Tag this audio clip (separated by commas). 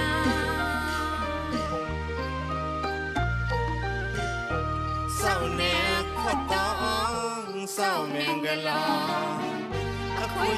Traditional music, Music